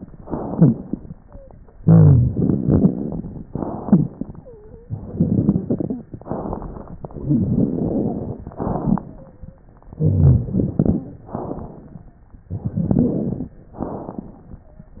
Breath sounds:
0.15-0.99 s: inhalation
0.15-0.99 s: rhonchi
1.27-1.56 s: wheeze
1.76-2.96 s: rhonchi
1.76-3.44 s: exhalation
3.51-4.46 s: inhalation
3.79-4.12 s: rhonchi
4.38-4.90 s: wheeze
6.13-7.08 s: inhalation
7.10-8.54 s: exhalation
7.19-8.54 s: rhonchi
8.58-9.43 s: inhalation
8.67-9.09 s: rhonchi
9.18-9.68 s: wheeze
9.92-11.16 s: exhalation
9.96-11.12 s: rhonchi
11.25-12.18 s: inhalation
12.50-13.58 s: exhalation
12.50-13.58 s: rhonchi
13.79-14.72 s: inhalation

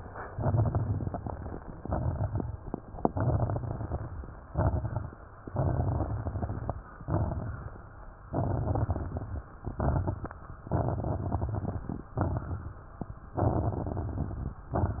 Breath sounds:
0.21-1.58 s: inhalation
0.21-1.58 s: crackles
1.76-2.58 s: exhalation
1.76-2.58 s: crackles
3.00-4.37 s: inhalation
3.00-4.37 s: crackles
4.50-5.31 s: exhalation
4.50-5.31 s: crackles
5.45-6.78 s: inhalation
5.45-6.78 s: crackles
7.02-7.84 s: exhalation
7.02-7.84 s: crackles
8.18-9.51 s: inhalation
8.18-9.51 s: crackles
9.62-10.32 s: exhalation
9.62-10.32 s: crackles
10.72-12.05 s: inhalation
10.72-12.05 s: crackles
12.18-12.96 s: exhalation
12.18-12.96 s: crackles
13.34-14.67 s: inhalation
13.34-14.67 s: crackles

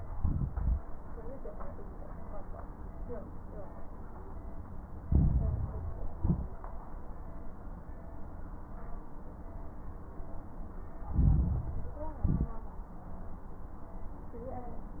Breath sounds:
0.13-0.83 s: exhalation
0.13-0.83 s: crackles
5.03-6.13 s: inhalation
5.03-6.13 s: crackles
6.17-6.57 s: exhalation
6.17-6.57 s: crackles
11.08-12.18 s: inhalation
11.08-12.18 s: crackles
12.22-12.62 s: exhalation
12.22-12.62 s: crackles

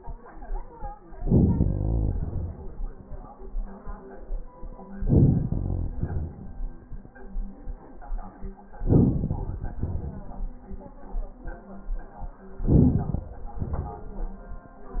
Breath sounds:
1.21-1.67 s: inhalation
1.65-3.03 s: exhalation
4.95-5.46 s: inhalation
5.47-6.84 s: exhalation
8.74-9.79 s: inhalation
9.79-11.37 s: exhalation
12.61-13.53 s: inhalation
13.53-14.83 s: exhalation

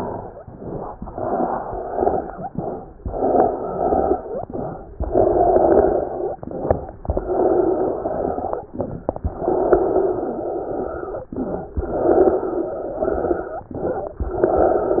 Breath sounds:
0.42-0.89 s: inhalation
1.02-2.47 s: exhalation
2.47-2.94 s: inhalation
2.96-4.40 s: exhalation
4.50-4.97 s: inhalation
4.95-6.40 s: exhalation
6.45-6.93 s: inhalation
7.02-8.63 s: exhalation
8.73-9.20 s: inhalation
9.30-11.27 s: exhalation
11.31-11.78 s: inhalation
11.74-13.72 s: exhalation
13.78-14.25 s: inhalation
14.27-15.00 s: exhalation

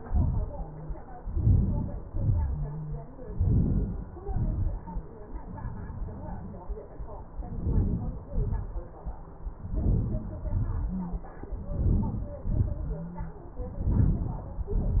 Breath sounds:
1.41-1.91 s: inhalation
2.17-2.54 s: exhalation
3.45-4.02 s: inhalation
4.29-4.62 s: exhalation
7.60-8.25 s: inhalation
8.33-8.74 s: exhalation
9.77-10.40 s: inhalation
10.57-11.05 s: exhalation
11.71-12.42 s: inhalation
12.56-13.11 s: exhalation
13.84-14.51 s: inhalation
14.64-15.00 s: exhalation

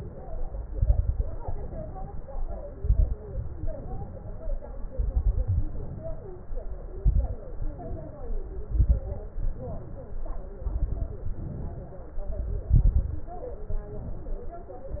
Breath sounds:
0.70-1.27 s: exhalation
0.70-1.27 s: crackles
1.39-2.64 s: inhalation
2.75-3.19 s: exhalation
2.75-3.19 s: crackles
3.27-4.52 s: inhalation
4.94-5.62 s: exhalation
4.94-5.62 s: crackles
5.72-6.86 s: inhalation
6.99-7.43 s: exhalation
6.99-7.43 s: crackles
7.49-8.62 s: inhalation
8.72-9.16 s: exhalation
8.72-9.16 s: crackles
9.37-10.51 s: inhalation
10.66-11.34 s: exhalation
10.66-11.34 s: crackles
11.42-12.60 s: inhalation
12.67-13.36 s: exhalation
12.67-13.36 s: crackles
13.57-14.50 s: inhalation

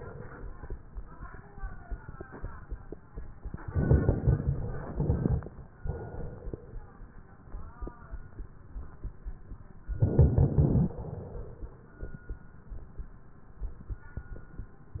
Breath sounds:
3.66-4.73 s: inhalation
3.66-4.73 s: crackles
4.82-5.67 s: exhalation
4.82-5.67 s: crackles
9.98-10.91 s: inhalation
9.98-10.91 s: crackles
11.02-12.01 s: exhalation

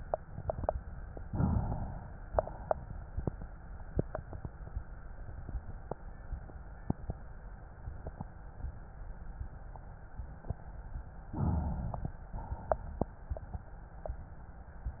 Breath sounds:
1.23-2.26 s: inhalation
2.27-3.30 s: exhalation
11.25-12.29 s: inhalation
12.30-13.39 s: exhalation

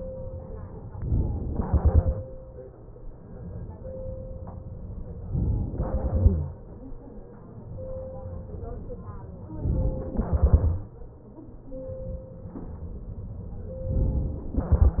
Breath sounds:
0.95-1.52 s: inhalation
1.52-3.16 s: exhalation
5.34-6.26 s: inhalation
9.30-10.22 s: inhalation
10.22-11.83 s: exhalation
13.91-14.60 s: inhalation

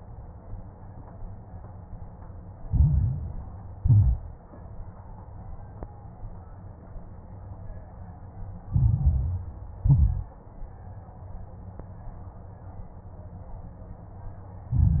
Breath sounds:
2.66-3.51 s: inhalation
2.66-3.51 s: crackles
3.80-4.44 s: exhalation
3.80-4.44 s: crackles
8.70-9.73 s: inhalation
8.70-9.73 s: crackles
9.84-10.41 s: exhalation
9.84-10.41 s: crackles
14.69-15.00 s: inhalation
14.69-15.00 s: crackles

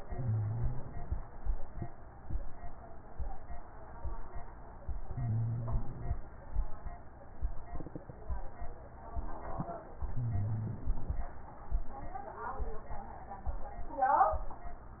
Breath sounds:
0.00-1.18 s: inhalation
0.00-1.18 s: crackles
5.02-6.19 s: inhalation
5.02-6.19 s: crackles
10.00-11.17 s: inhalation
10.00-11.17 s: crackles

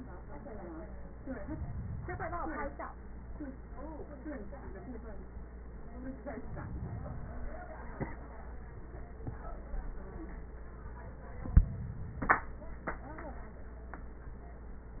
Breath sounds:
No breath sounds were labelled in this clip.

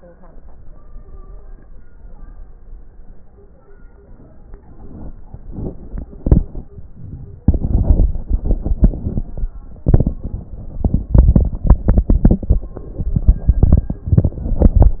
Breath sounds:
0.94-1.75 s: stridor
4.57-5.30 s: inhalation
5.28-6.08 s: exhalation
5.28-6.08 s: crackles
6.09-6.74 s: inhalation
6.09-6.74 s: crackles
6.71-7.45 s: exhalation

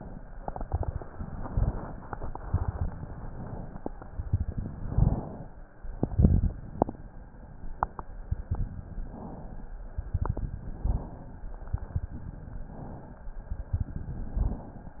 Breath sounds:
0.28-1.07 s: exhalation
0.28-1.07 s: crackles
1.24-2.04 s: inhalation
2.20-3.00 s: exhalation
2.20-3.00 s: crackles
3.11-3.91 s: inhalation
3.88-4.68 s: exhalation
3.88-4.68 s: crackles
4.67-5.47 s: inhalation
5.83-6.63 s: exhalation
5.83-6.63 s: crackles
8.95-9.75 s: inhalation
9.86-10.60 s: exhalation
9.86-10.60 s: crackles
10.69-11.48 s: inhalation
11.61-12.35 s: exhalation
11.61-12.35 s: crackles
12.60-13.39 s: inhalation
13.45-14.19 s: exhalation
13.45-14.19 s: crackles
14.18-14.97 s: inhalation

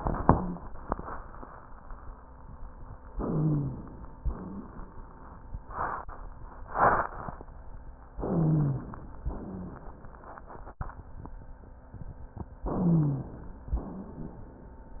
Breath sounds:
3.11-3.80 s: wheeze
3.11-4.12 s: inhalation
4.12-4.93 s: exhalation
4.23-4.76 s: wheeze
8.23-9.05 s: wheeze
8.23-9.22 s: inhalation
9.30-9.83 s: wheeze
9.30-9.96 s: exhalation
12.66-13.68 s: inhalation
12.79-13.32 s: wheeze
13.74-14.50 s: exhalation

